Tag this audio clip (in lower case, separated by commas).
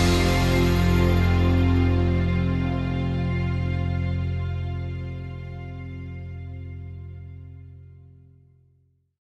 music